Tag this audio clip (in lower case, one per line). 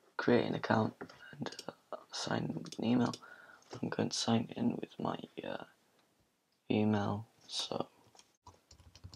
typing